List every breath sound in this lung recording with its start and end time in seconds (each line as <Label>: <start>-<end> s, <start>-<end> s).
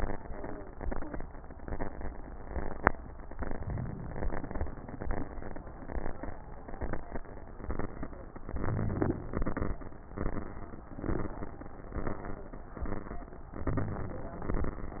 Inhalation: 3.55-4.65 s, 8.47-9.80 s, 13.66-14.99 s